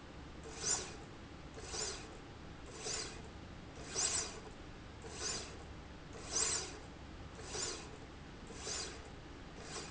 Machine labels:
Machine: slide rail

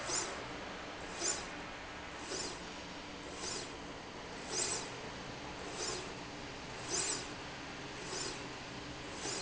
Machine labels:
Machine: slide rail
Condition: normal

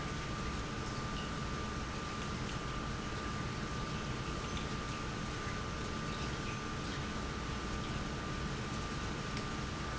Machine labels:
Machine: pump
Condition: normal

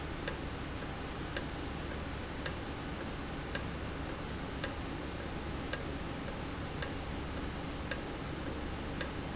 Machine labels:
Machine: valve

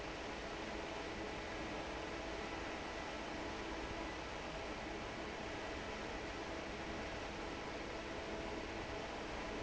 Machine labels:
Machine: fan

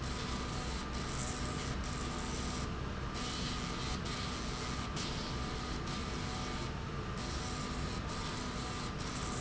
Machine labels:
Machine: slide rail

